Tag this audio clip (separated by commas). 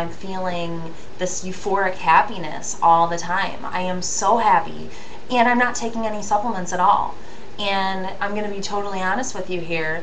Speech